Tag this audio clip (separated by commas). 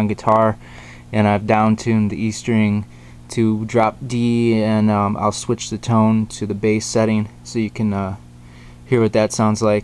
Speech